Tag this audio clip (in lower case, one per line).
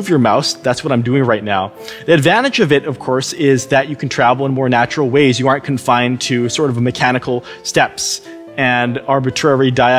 speech
music